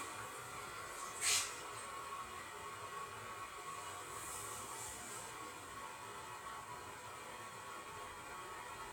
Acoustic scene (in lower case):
restroom